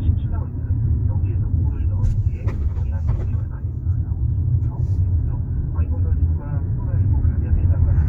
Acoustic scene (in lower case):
car